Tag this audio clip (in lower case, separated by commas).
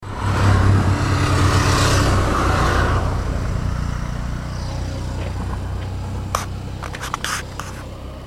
car, vehicle, motor vehicle (road)